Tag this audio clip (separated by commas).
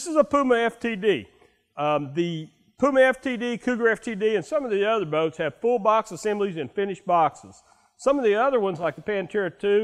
Speech